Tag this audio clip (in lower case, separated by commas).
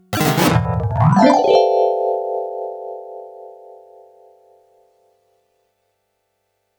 keyboard (musical), music, musical instrument